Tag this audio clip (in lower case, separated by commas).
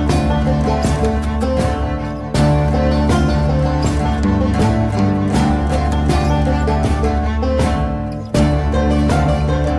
country, music, soundtrack music